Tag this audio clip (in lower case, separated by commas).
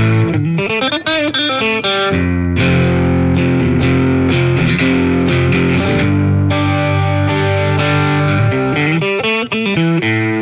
effects unit, music